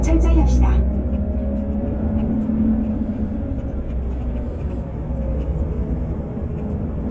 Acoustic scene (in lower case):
bus